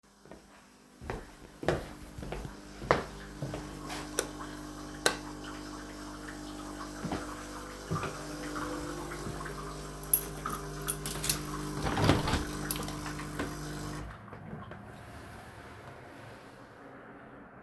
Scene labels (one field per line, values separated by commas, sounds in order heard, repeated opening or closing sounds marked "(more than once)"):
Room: kitchen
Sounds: footsteps, coffee machine, light switch, window